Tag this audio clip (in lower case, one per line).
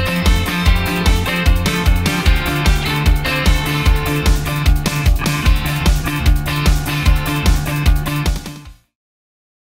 music